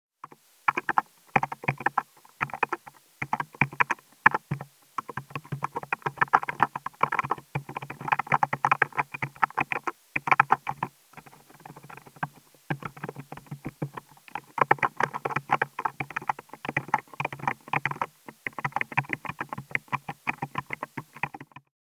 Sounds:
Typing, Domestic sounds, Computer keyboard

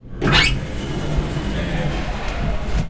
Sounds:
Domestic sounds, Sliding door, Door

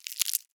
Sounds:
crinkling

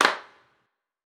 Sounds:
Hands, Clapping

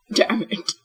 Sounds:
Human voice

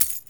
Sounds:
Coin (dropping), home sounds

